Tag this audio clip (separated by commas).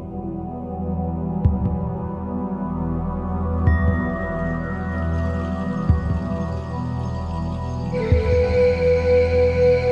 Ambient music